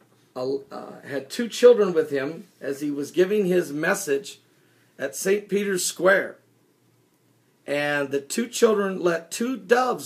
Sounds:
Speech

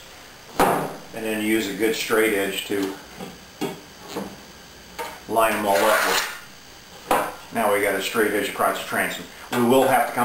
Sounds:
Speech

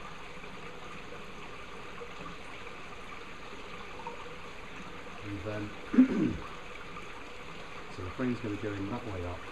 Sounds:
Speech, bee or wasp

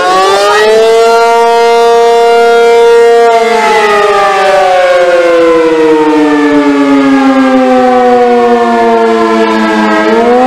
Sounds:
civil defense siren

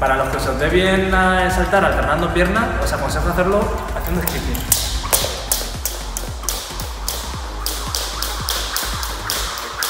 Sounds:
rope skipping

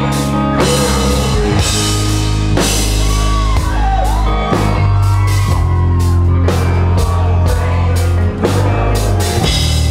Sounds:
Music

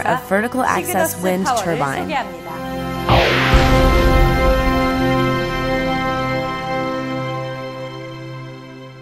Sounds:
Speech, Music

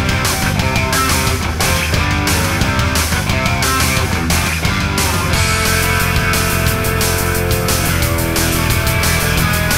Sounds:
Music

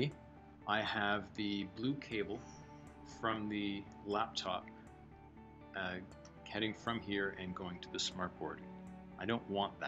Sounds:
Speech, Music

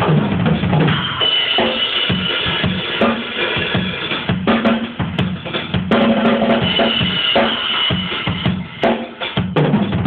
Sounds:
Music

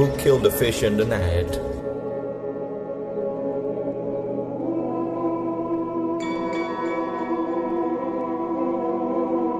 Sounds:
Speech, Music

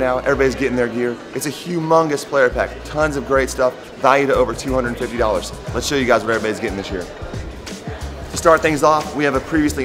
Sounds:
Music, Speech

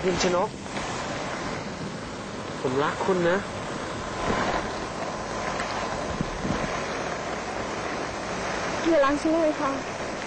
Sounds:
Rain

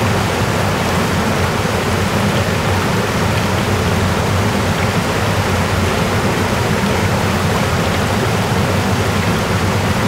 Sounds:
stream burbling, Stream

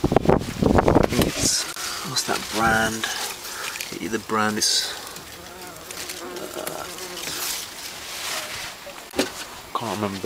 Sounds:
Water

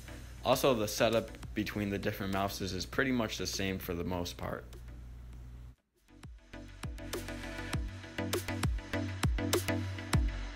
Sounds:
Music, Speech

